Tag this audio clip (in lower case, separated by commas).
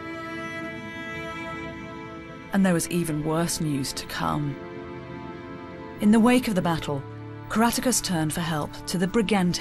woman speaking, music, narration, speech